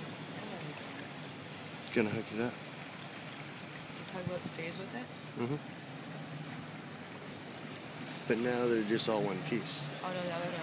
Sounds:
speech, water vehicle, vehicle

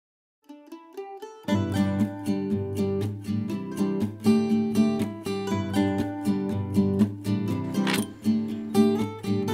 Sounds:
mandolin, music

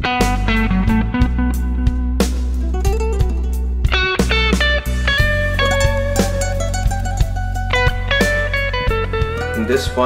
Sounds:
speech, music

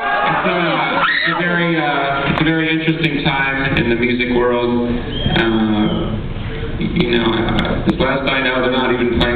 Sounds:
monologue, male speech, speech

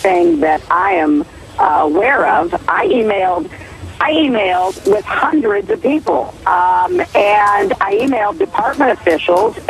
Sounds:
speech

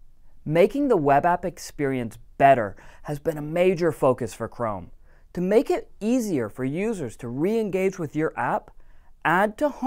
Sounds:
speech

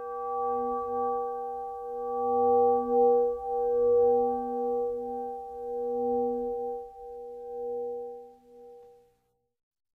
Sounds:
sound effect

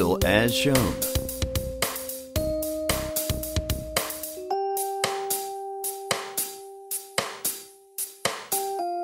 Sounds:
speech, music

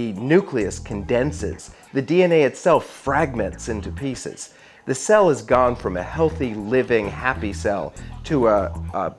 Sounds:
music, speech

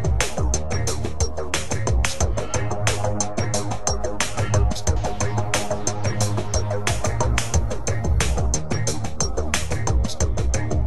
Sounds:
music

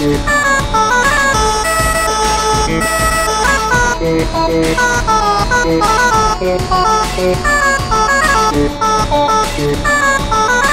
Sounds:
music

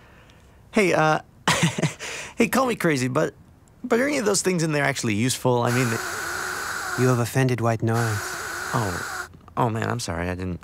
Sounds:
speech, white noise

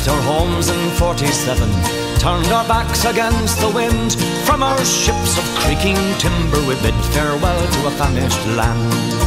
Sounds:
music

